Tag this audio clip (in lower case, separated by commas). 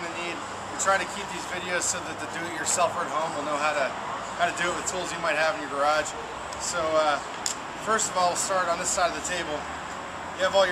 speech